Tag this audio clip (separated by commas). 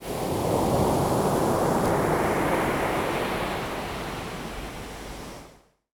Waves, Ocean, Water